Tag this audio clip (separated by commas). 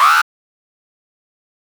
Alarm